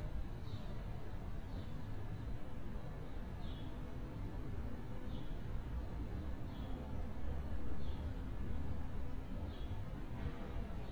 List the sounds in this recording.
background noise